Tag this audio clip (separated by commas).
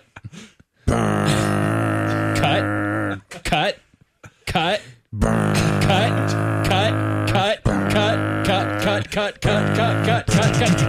Speech